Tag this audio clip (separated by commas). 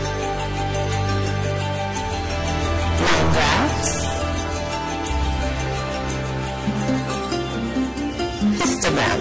Music, Speech